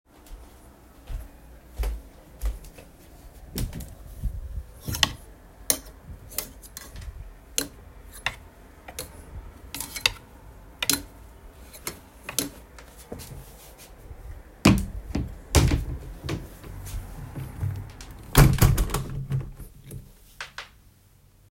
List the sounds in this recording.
footsteps, window